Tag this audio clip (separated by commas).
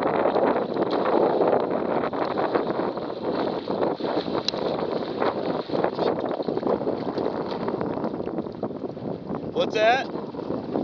Boat, Speech